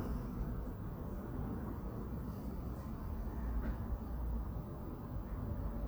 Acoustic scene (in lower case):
residential area